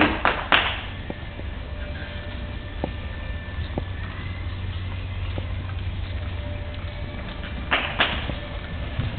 Clapping and electrical vibrations